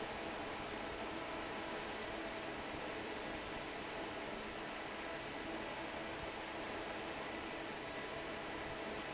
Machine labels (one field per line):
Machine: fan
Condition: normal